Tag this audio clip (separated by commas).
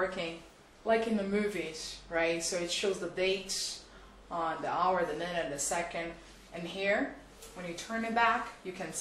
Speech